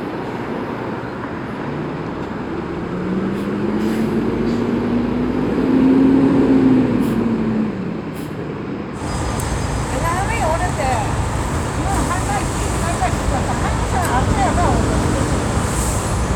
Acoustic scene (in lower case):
street